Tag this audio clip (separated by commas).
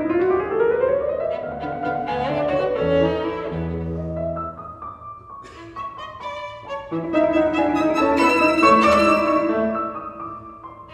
Musical instrument, Music, fiddle